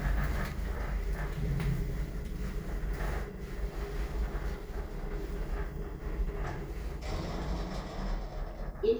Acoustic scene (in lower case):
elevator